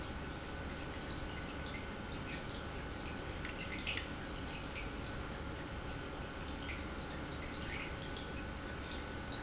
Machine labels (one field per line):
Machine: pump